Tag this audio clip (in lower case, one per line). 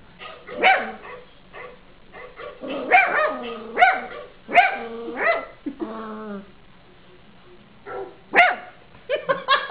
animal
canids
dog
bark